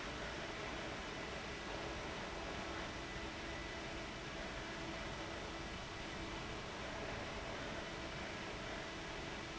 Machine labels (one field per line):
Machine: fan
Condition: abnormal